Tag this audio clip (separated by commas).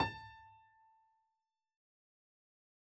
Keyboard (musical), Piano, Musical instrument, Music